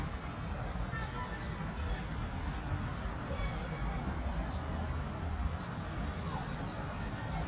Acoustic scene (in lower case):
residential area